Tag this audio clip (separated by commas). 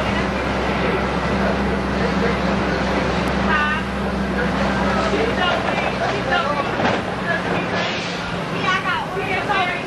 Vehicle, Speech